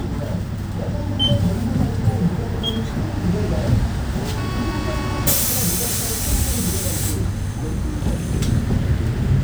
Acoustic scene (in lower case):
bus